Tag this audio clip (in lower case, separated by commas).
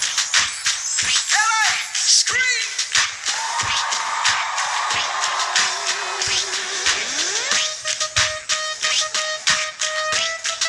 music